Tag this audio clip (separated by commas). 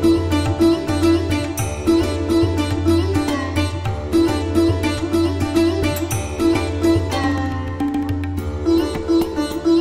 Sitar